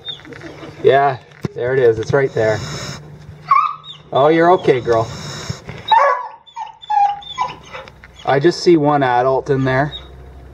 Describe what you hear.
Man is speaking and dog is whining